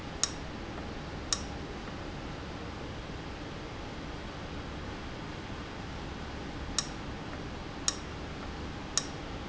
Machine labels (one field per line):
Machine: valve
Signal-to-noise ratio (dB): -6 dB